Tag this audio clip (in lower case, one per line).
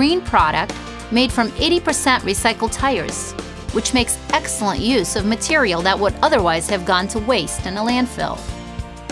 music
speech